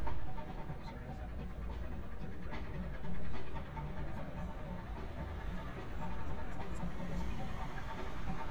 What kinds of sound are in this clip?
engine of unclear size, music from an unclear source